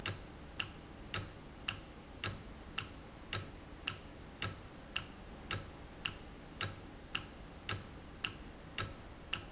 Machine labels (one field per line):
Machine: valve